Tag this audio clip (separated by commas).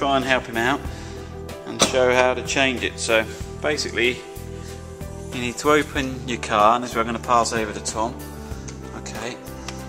Speech, Music